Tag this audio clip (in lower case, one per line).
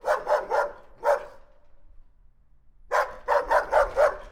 dog
domestic animals
animal
bark